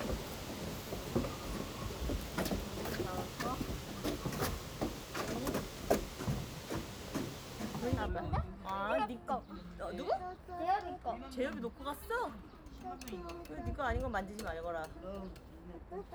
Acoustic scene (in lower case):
park